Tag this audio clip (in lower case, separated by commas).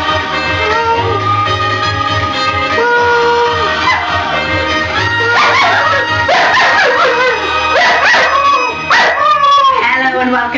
music, bark, pets, dog, animal